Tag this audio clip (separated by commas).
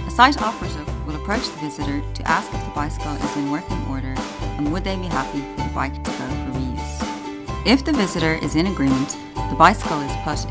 Music, Speech